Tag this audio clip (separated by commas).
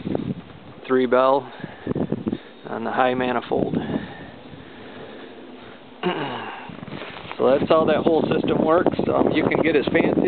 Speech